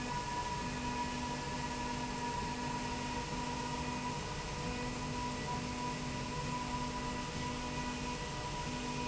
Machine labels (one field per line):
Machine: slide rail